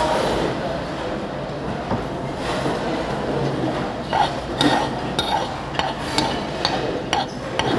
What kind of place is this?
restaurant